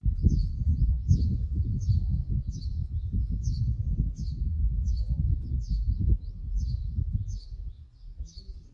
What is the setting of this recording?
park